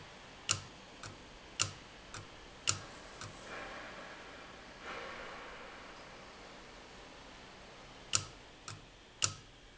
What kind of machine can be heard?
valve